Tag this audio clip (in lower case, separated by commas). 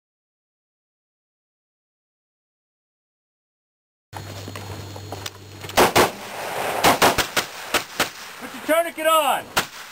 inside a small room, speech, outside, rural or natural